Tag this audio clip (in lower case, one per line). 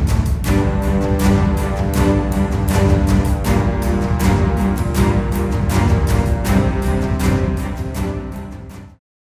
music